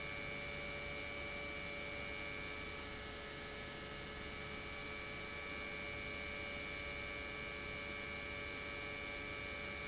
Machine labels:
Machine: pump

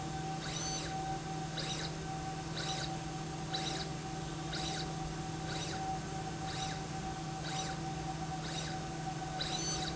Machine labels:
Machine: slide rail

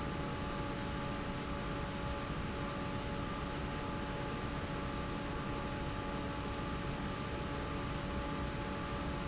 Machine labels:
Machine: fan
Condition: normal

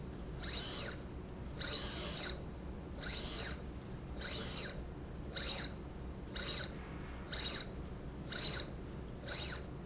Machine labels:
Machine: slide rail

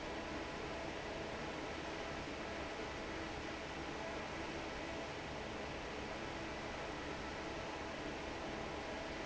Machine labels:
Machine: fan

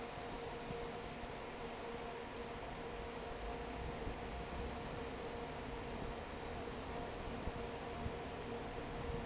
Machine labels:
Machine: fan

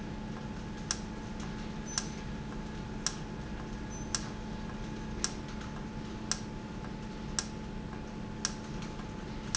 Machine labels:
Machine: valve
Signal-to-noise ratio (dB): -6 dB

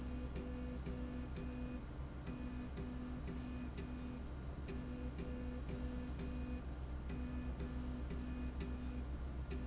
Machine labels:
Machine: slide rail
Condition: normal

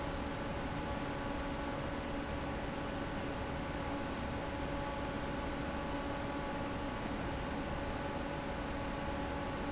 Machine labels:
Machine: fan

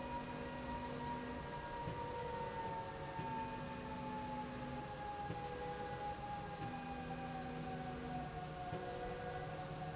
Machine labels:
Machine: slide rail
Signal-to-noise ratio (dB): 0 dB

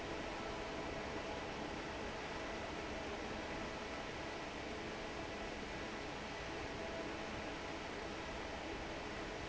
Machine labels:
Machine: fan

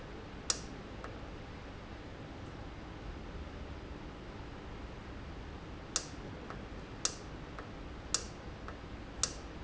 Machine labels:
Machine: valve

